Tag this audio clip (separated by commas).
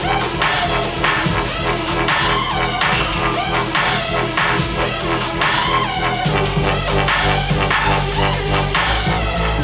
Music, Electronic music, Techno, Speech